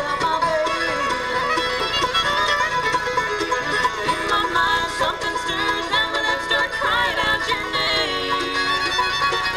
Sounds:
music

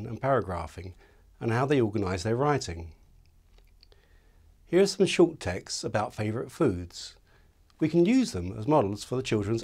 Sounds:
speech

